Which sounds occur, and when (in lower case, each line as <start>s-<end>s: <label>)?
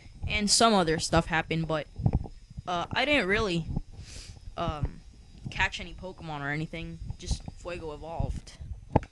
0.0s-9.1s: mechanisms
0.0s-9.1s: video game sound
0.2s-0.4s: wind noise (microphone)
0.3s-1.9s: female speech
0.8s-1.0s: wind noise (microphone)
1.2s-1.4s: wind noise (microphone)
1.6s-1.7s: wind noise (microphone)
2.0s-2.3s: wind noise (microphone)
2.4s-2.6s: wind noise (microphone)
2.7s-3.6s: female speech
2.8s-4.5s: wind noise (microphone)
4.0s-4.4s: sniff
4.6s-4.8s: female speech
4.7s-4.9s: wind noise (microphone)
5.4s-5.4s: clicking
5.4s-5.7s: wind noise (microphone)
5.5s-7.0s: female speech
7.0s-7.5s: wind noise (microphone)
7.2s-7.4s: female speech
7.6s-8.3s: female speech
7.7s-7.9s: wind noise (microphone)
8.2s-8.4s: wind noise (microphone)
8.6s-8.8s: wind noise (microphone)
8.9s-9.1s: generic impact sounds